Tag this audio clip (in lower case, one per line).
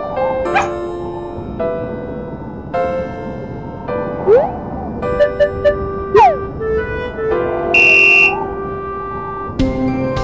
piano
electric piano
electronic organ
organ
keyboard (musical)